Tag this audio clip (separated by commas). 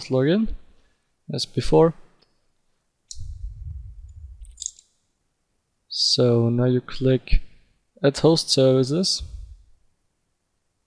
Speech, inside a small room